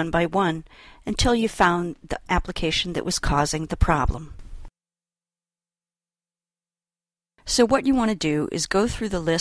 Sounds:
inside a small room, Speech

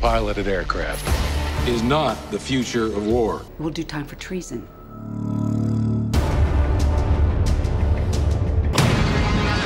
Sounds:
Music, Speech

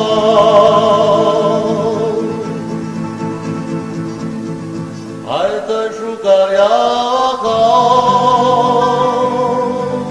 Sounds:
Music

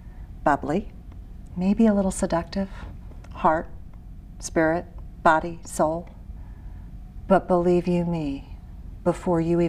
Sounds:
Speech

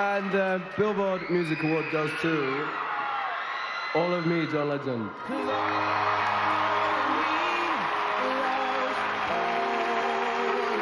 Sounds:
Theme music, Speech, Music

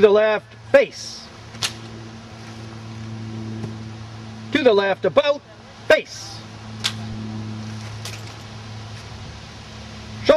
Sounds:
Speech

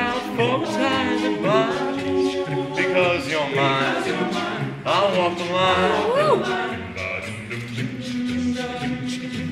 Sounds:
Music

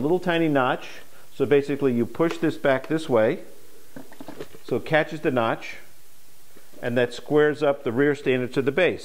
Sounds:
Speech

